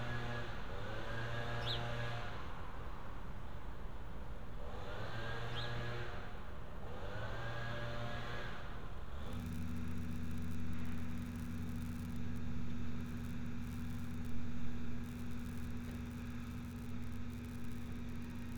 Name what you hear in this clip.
engine of unclear size